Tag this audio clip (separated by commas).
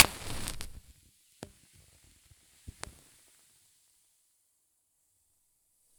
Fire